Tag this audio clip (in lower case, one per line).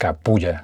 male speech
human voice
speech